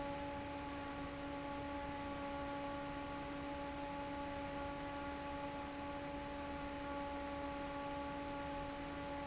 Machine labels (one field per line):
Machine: fan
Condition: normal